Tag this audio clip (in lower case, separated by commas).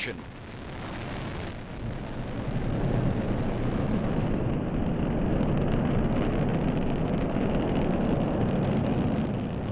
missile launch